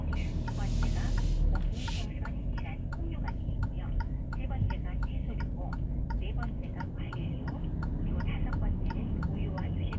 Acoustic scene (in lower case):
car